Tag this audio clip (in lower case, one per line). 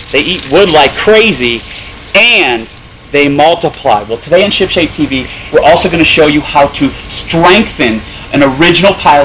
speech